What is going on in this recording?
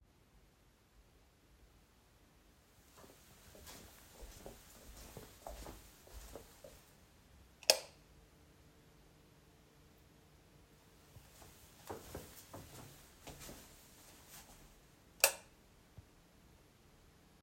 I walked to the first light switch and flipped it on. Then I walked to the other switch and turned that one on too.